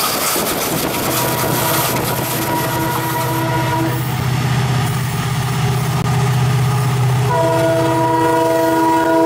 Train moves down a track quickly, and sounds its horn